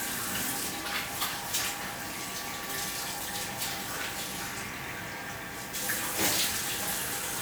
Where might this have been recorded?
in a restroom